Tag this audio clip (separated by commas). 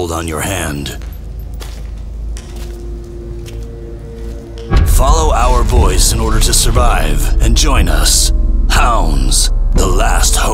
Speech, Music